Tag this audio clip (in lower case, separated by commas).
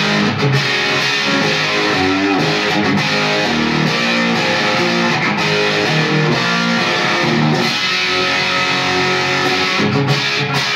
music